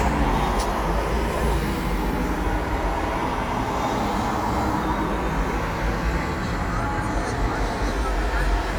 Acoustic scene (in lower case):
street